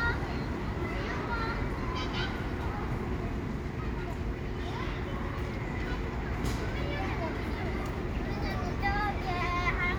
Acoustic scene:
residential area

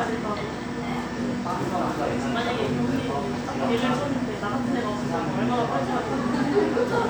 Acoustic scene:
cafe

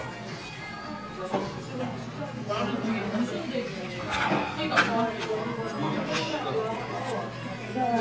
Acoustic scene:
crowded indoor space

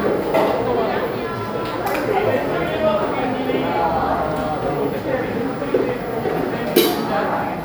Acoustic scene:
cafe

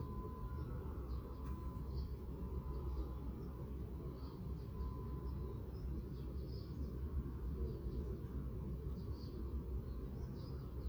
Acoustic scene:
park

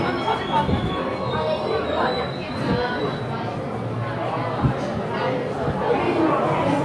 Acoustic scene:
subway station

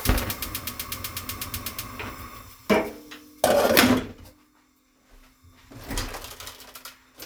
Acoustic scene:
kitchen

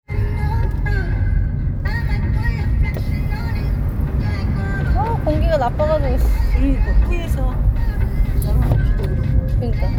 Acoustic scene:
car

